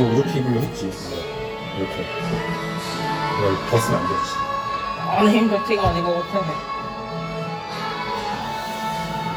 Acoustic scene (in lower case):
cafe